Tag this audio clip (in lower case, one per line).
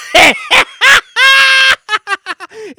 laughter
human voice